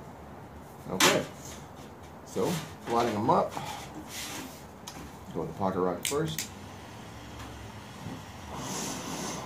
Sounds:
Speech

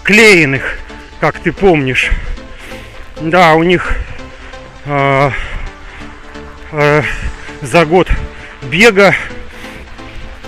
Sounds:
outside, urban or man-made, Speech, Music, Run

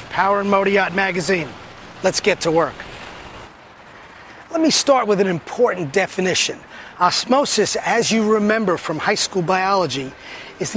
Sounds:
Speech

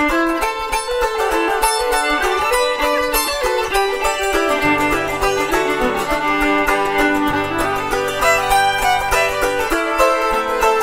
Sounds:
Music, fiddle, playing banjo, Bowed string instrument, Mandolin, Musical instrument, Banjo, Country, Bluegrass

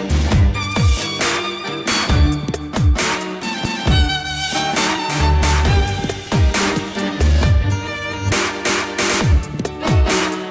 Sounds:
Dubstep, Music

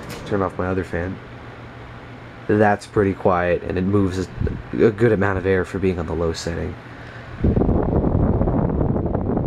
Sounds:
Wind noise (microphone), Wind

